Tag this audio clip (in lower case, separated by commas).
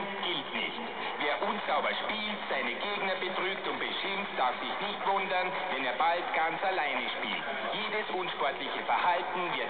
radio, speech